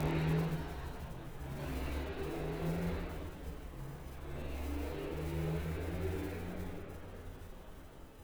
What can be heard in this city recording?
engine of unclear size